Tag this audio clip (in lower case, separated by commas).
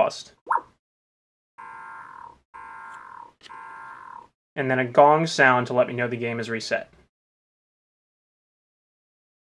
speech